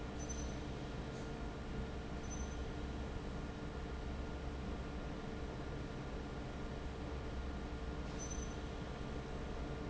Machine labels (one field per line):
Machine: fan